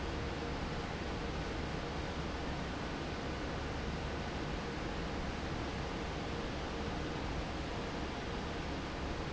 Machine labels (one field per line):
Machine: fan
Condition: normal